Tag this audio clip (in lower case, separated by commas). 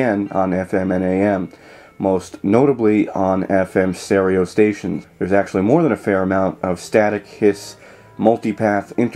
speech